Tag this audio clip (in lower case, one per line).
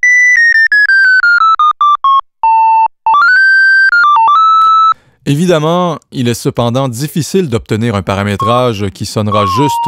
musical instrument
synthesizer
speech
music
keyboard (musical)